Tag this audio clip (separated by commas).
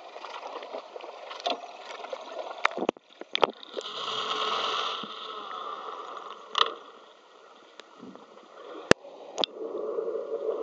Boat, Vehicle